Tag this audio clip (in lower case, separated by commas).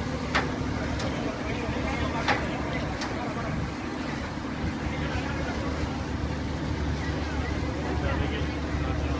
vehicle, speech